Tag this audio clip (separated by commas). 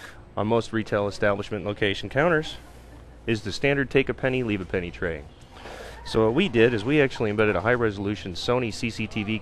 Speech